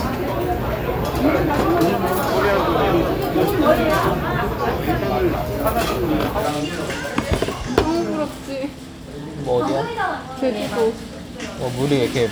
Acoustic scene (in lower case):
restaurant